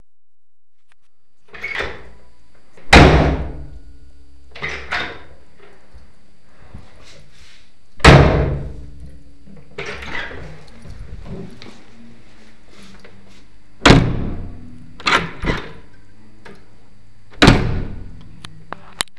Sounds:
door
domestic sounds

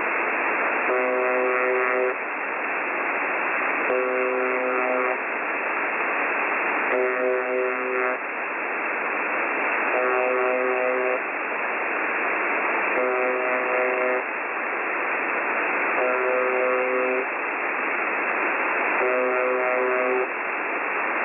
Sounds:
alarm

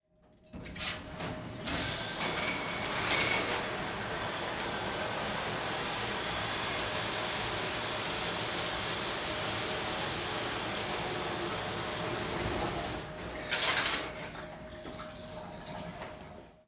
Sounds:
domestic sounds
bathtub (filling or washing)

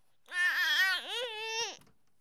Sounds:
speech
human voice

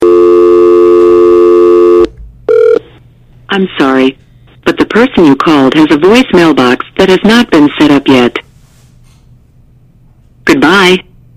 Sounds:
alarm
telephone

